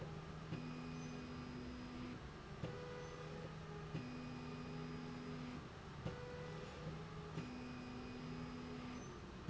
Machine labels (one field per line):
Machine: slide rail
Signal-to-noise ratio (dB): 6 dB